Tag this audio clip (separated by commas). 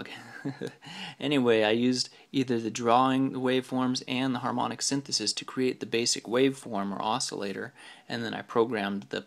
Speech